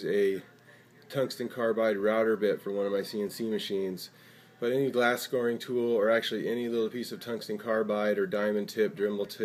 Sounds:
Speech

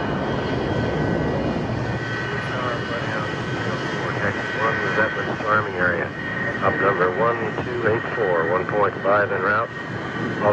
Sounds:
Vehicle, Aircraft

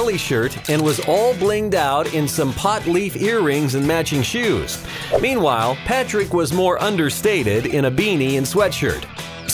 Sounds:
Music, Speech

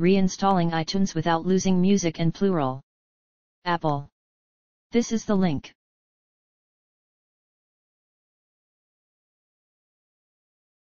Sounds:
Speech

